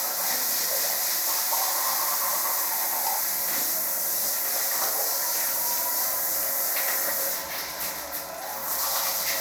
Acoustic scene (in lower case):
restroom